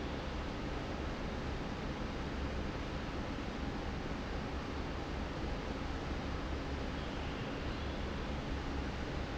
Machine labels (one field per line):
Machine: fan